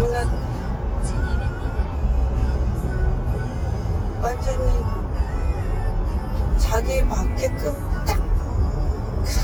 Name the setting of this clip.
car